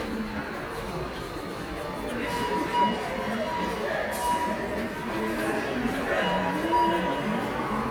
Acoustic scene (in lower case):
subway station